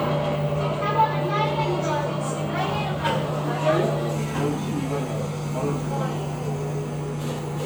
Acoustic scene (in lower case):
cafe